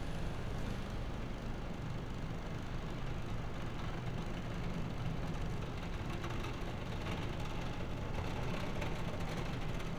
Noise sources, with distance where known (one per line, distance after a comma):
unidentified impact machinery, near